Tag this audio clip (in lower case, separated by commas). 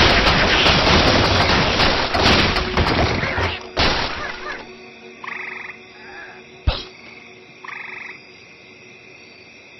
oink